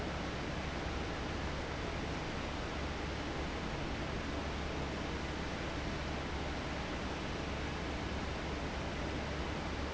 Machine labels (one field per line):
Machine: fan